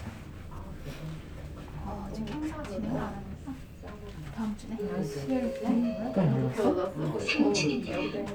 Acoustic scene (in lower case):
elevator